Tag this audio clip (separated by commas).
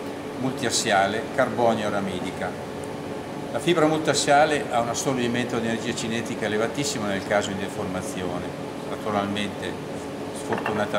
Speech